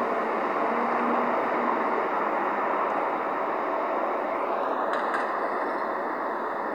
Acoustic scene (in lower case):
street